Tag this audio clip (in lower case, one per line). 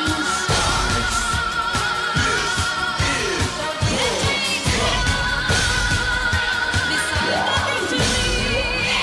music
rhythm and blues